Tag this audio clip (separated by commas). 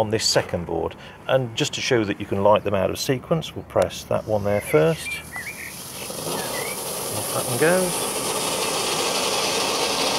Fireworks, Speech